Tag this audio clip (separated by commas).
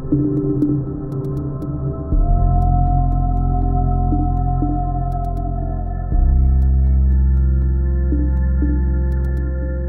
Music